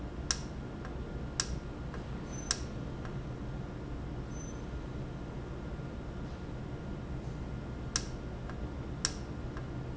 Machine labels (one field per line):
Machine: valve